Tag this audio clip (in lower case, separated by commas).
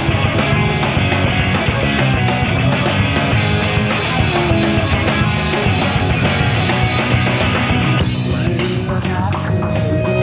music